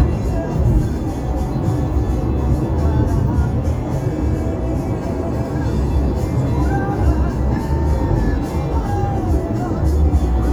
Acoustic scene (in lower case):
car